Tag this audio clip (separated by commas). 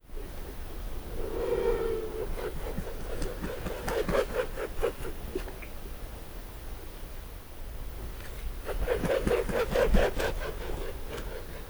Animal, Bird, Wild animals